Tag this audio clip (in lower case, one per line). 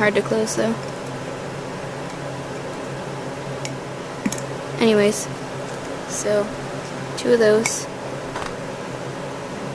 inside a small room
speech